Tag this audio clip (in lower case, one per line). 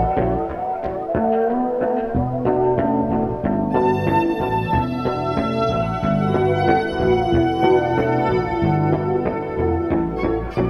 music
orchestra